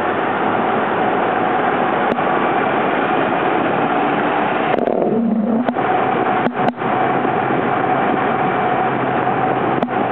A car driving down the roadway